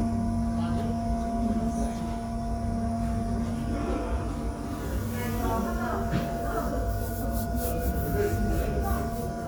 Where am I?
in a subway station